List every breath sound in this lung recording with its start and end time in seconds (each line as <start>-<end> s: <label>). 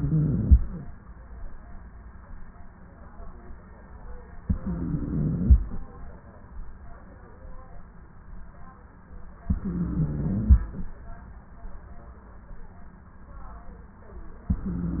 0.00-0.66 s: inhalation
4.45-5.62 s: inhalation
9.50-10.68 s: inhalation
14.52-15.00 s: inhalation